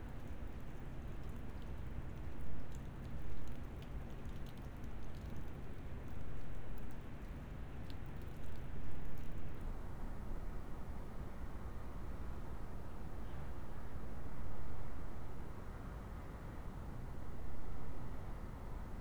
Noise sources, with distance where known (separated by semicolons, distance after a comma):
background noise